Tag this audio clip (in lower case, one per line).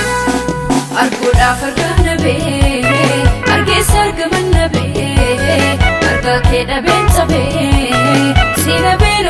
music